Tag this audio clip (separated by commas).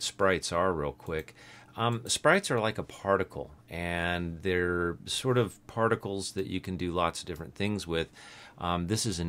Speech